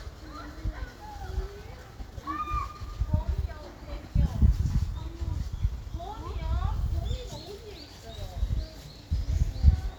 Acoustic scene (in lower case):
park